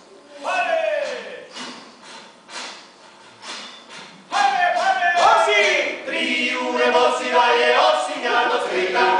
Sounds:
Speech, Singing

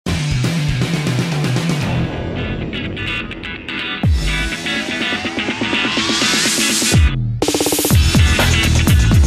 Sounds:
Music, Electronic music, Techno

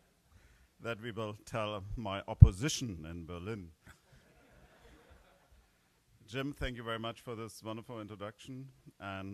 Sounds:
monologue, Speech, man speaking

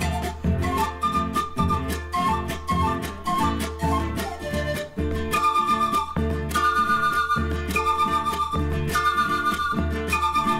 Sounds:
Music

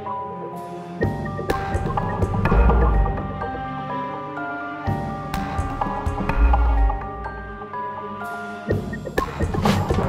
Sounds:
Music

